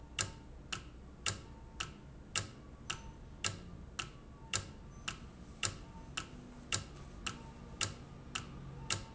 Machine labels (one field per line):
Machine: valve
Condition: normal